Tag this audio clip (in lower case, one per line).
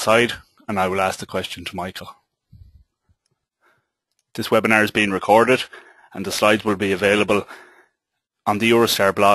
speech